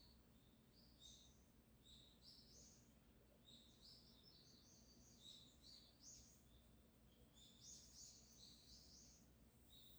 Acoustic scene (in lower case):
park